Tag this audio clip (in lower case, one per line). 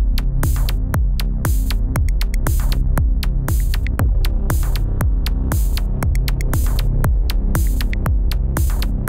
electronic music
music
techno